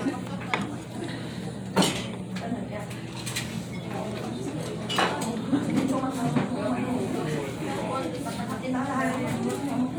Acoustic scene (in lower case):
restaurant